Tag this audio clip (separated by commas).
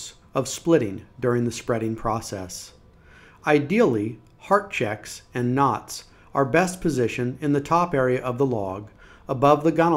Speech